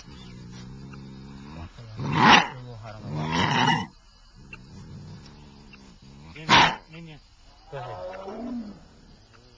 An animal roars menacingly several times